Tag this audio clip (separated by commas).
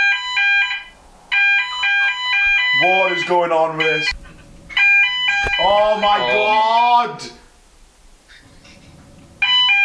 Speech, smoke alarm